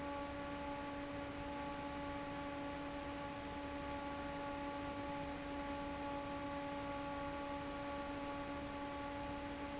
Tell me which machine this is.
fan